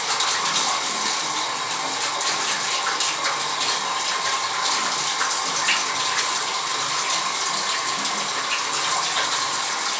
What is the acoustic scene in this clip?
restroom